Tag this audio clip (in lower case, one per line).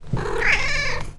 animal
meow
domestic animals
purr
cat